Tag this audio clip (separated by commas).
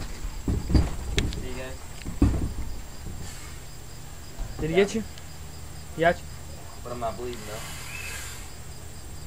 outside, rural or natural, Animal, Speech, Snake